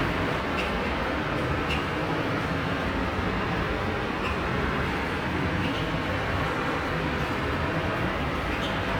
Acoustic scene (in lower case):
subway station